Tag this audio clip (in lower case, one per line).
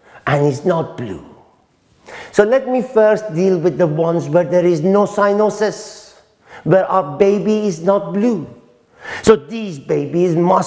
speech